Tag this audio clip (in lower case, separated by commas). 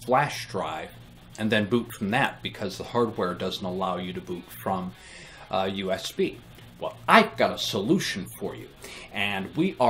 speech